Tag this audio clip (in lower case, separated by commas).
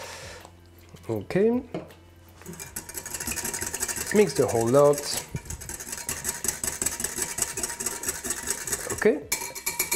speech